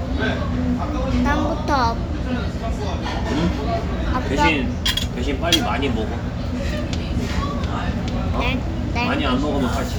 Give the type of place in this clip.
restaurant